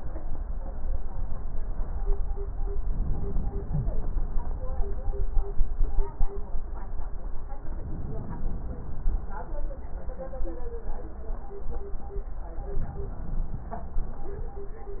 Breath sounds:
Inhalation: 2.88-4.71 s, 7.63-9.46 s, 12.60-14.43 s

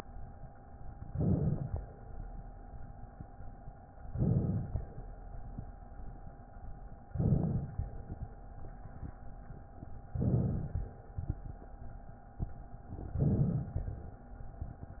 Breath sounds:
Inhalation: 1.02-1.78 s, 4.08-4.84 s, 7.12-7.88 s, 10.13-10.89 s, 13.19-13.95 s

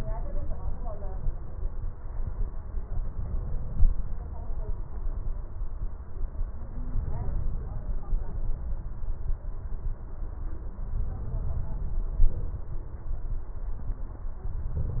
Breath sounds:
Inhalation: 6.87-8.02 s, 10.76-12.08 s

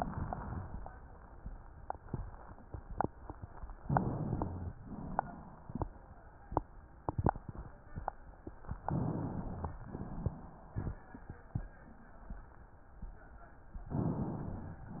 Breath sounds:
Inhalation: 3.82-4.77 s, 8.87-9.82 s
Exhalation: 4.77-6.22 s, 9.82-11.18 s
Rhonchi: 3.87-4.71 s

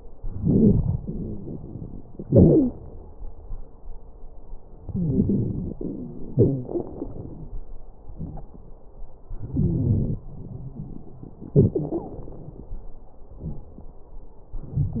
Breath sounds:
Inhalation: 0.00-0.96 s, 4.87-6.18 s, 9.21-10.19 s
Exhalation: 2.23-2.77 s, 6.28-7.59 s, 11.55-12.22 s
Wheeze: 0.98-1.62 s, 2.23-2.77 s, 4.87-6.18 s, 6.28-6.79 s, 9.53-10.19 s
Crackles: 0.00-0.96 s

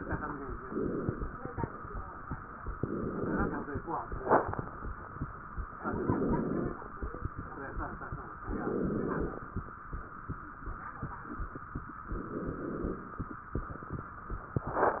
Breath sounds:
Inhalation: 0.59-1.65 s, 2.77-3.83 s, 5.81-6.87 s, 8.46-9.53 s, 12.11-13.17 s

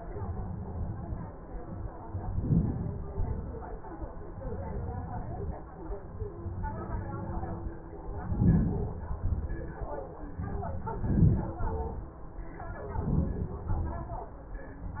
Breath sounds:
Inhalation: 2.05-2.90 s, 8.01-8.71 s, 10.57-11.57 s, 12.63-13.53 s
Exhalation: 2.88-3.70 s, 8.75-9.56 s, 11.63-12.22 s, 13.56-14.35 s

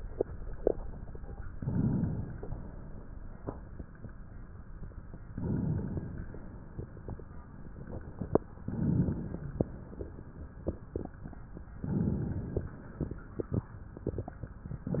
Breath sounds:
Inhalation: 1.55-2.44 s, 5.32-6.22 s, 8.66-9.55 s, 11.77-12.67 s

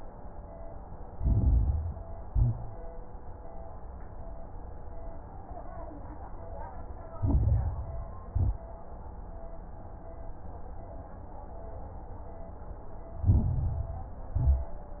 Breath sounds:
Inhalation: 1.02-2.05 s, 7.12-8.15 s, 13.22-14.25 s
Exhalation: 2.18-2.87 s, 8.28-8.72 s, 14.35-15.00 s
Crackles: 1.02-2.05 s, 2.18-2.87 s, 7.12-8.15 s, 8.28-8.72 s, 13.22-14.25 s, 14.35-15.00 s

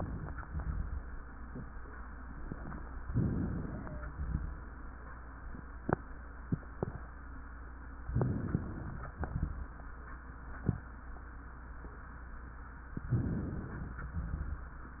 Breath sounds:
Inhalation: 3.09-3.95 s, 8.20-9.05 s, 13.15-14.00 s
Exhalation: 0.42-0.95 s, 4.16-4.54 s, 9.18-9.56 s, 14.21-14.69 s
Crackles: 0.42-0.95 s, 4.16-4.52 s, 9.13-9.60 s, 14.21-14.69 s

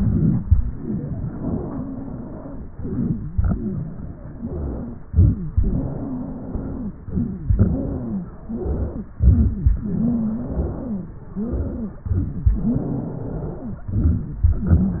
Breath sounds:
Inhalation: 0.00-0.43 s, 2.74-3.25 s, 5.09-5.55 s, 9.20-9.69 s, 12.11-12.60 s, 13.95-14.44 s
Exhalation: 0.51-2.64 s, 3.33-5.03 s, 5.55-6.93 s, 7.58-9.06 s, 9.77-11.99 s, 12.58-13.85 s, 14.54-15.00 s
Wheeze: 0.51-2.64 s, 2.74-3.25 s, 3.33-5.03 s, 5.09-5.55 s, 5.55-6.93 s, 7.58-9.06 s, 9.20-9.69 s, 9.77-11.17 s, 11.38-12.01 s, 12.11-12.60 s, 12.64-13.85 s, 14.54-15.00 s
Crackles: 0.00-0.43 s

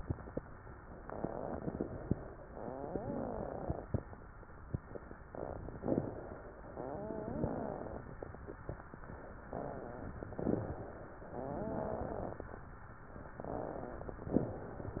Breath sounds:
Inhalation: 1.00-2.18 s, 5.76-6.67 s, 10.26-11.30 s, 14.28-15.00 s
Exhalation: 2.47-3.93 s, 6.69-8.13 s, 11.30-12.53 s
Wheeze: 2.47-3.77 s, 6.69-8.01 s, 11.30-12.35 s
Crackles: 1.00-2.18 s

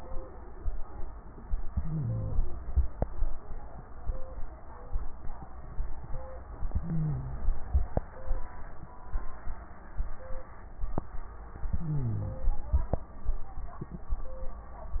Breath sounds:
Inhalation: 1.66-2.62 s, 6.66-7.61 s, 11.71-12.66 s
Crackles: 1.66-2.62 s, 6.66-7.61 s, 11.71-12.66 s

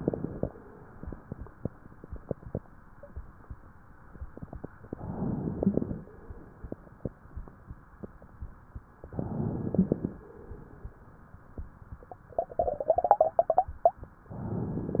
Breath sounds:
Inhalation: 5.03-6.09 s, 9.15-10.21 s, 14.32-15.00 s
Crackles: 5.03-6.09 s, 9.15-10.21 s, 14.32-15.00 s

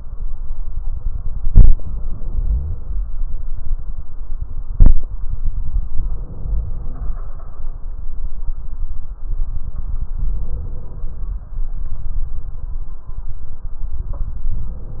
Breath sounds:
Inhalation: 1.51-3.05 s, 5.92-7.21 s, 10.13-11.43 s, 14.50-15.00 s

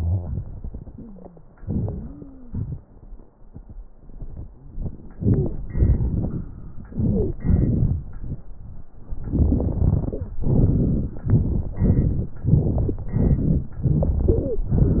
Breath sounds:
Inhalation: 5.20-5.60 s, 6.93-7.35 s
Exhalation: 5.73-6.51 s, 7.43-8.04 s
Stridor: 0.89-1.45 s, 1.82-2.62 s, 14.29-14.68 s

